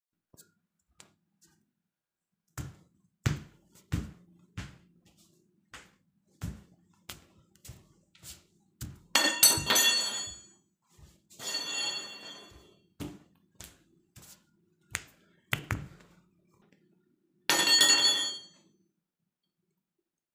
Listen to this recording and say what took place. I was walking to the dining table with a spoon in handed, however It fell from my hands, then I knelt to pick it up from underneath the table.